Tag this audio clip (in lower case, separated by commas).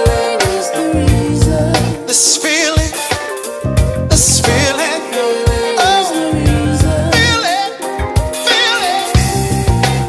music, soul music, singing